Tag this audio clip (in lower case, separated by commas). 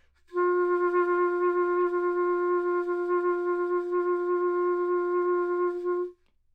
wind instrument, musical instrument, music